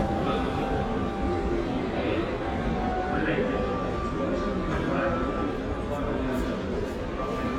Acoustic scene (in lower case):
crowded indoor space